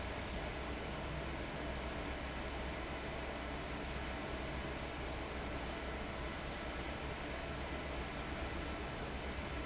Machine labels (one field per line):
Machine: fan